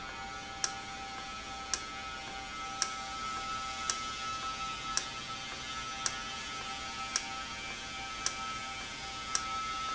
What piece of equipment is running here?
valve